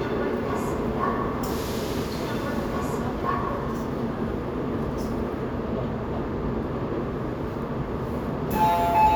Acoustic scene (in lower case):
subway train